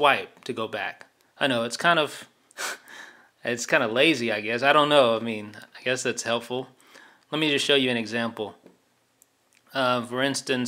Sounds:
inside a small room
speech

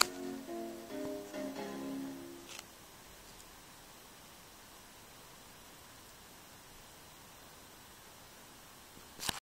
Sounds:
music

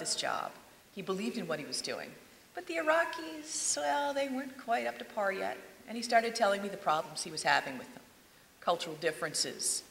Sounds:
speech

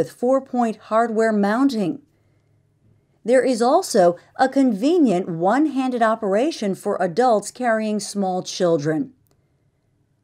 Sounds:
speech

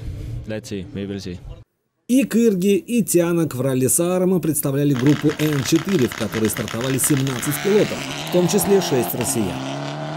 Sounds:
vehicle
auto racing
car

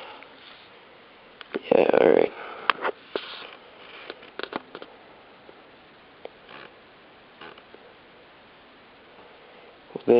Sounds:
speech
inside a small room

